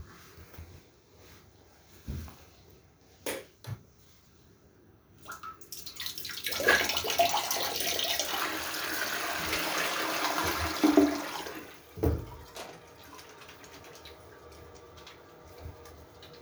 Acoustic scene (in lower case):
restroom